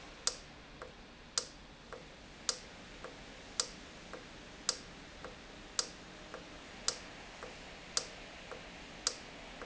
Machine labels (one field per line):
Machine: valve